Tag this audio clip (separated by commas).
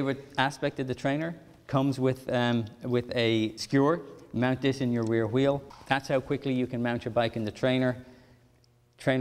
Speech